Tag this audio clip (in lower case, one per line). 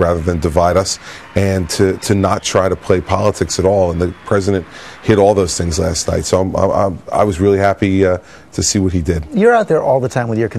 male speech
speech